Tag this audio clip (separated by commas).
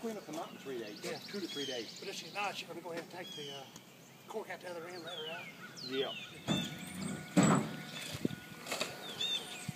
Speech, Bird